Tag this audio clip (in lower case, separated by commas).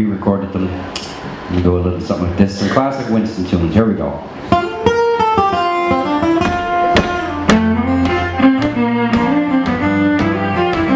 speech, music